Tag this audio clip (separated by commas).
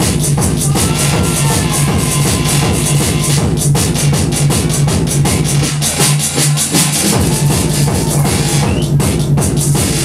Music